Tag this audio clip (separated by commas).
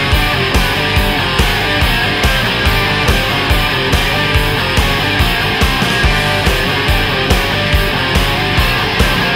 Music